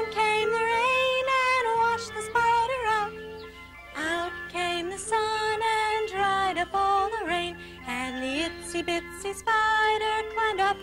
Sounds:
Music

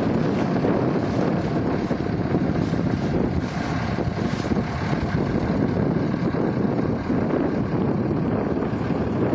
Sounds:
Vehicle

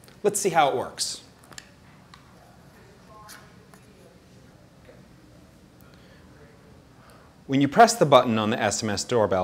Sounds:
Speech

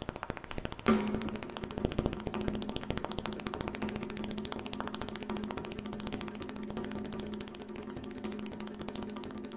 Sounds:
Percussion, Music, Wood block

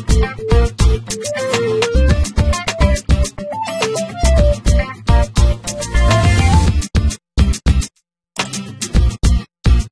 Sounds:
Music

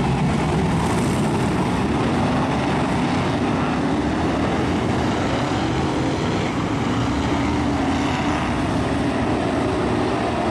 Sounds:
Car passing by

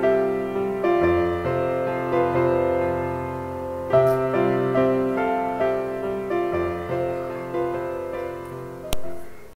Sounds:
Music

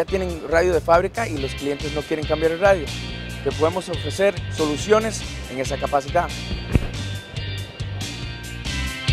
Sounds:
Music, Speech

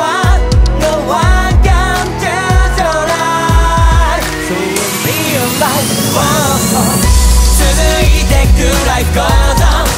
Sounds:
Music

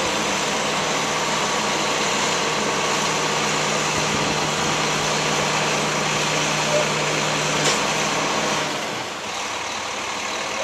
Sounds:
Vehicle, Truck

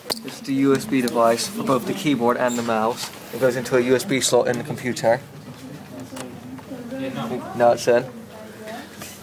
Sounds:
Speech

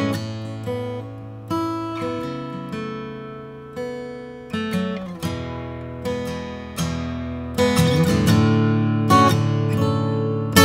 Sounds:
Guitar, Musical instrument, Plucked string instrument, Music, Acoustic guitar

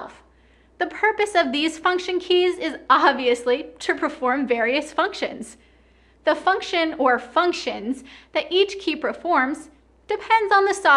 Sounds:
Speech

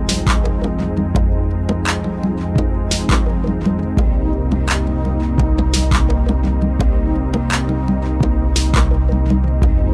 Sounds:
Music

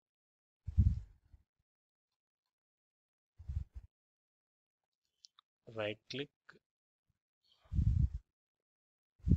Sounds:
Speech

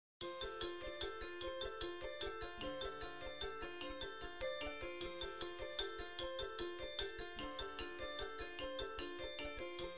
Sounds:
Glockenspiel

